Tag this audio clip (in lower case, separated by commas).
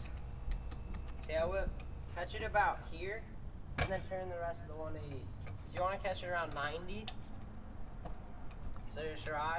speech